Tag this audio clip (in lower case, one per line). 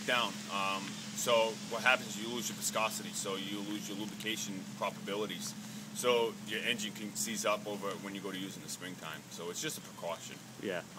speech